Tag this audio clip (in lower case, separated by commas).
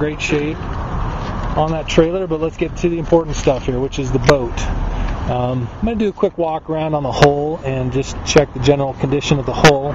speech